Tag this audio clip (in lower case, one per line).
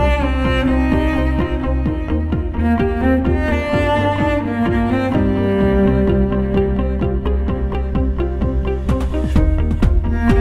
music